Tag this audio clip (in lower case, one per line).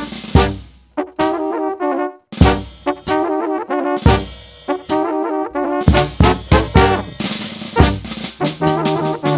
music
brass instrument